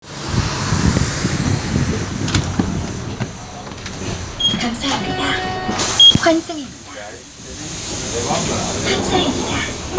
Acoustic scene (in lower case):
bus